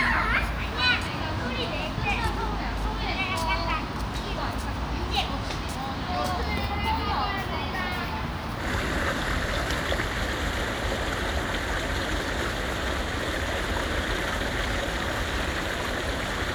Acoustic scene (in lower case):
park